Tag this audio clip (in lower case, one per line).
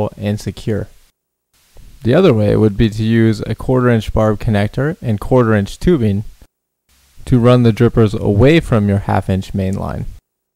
speech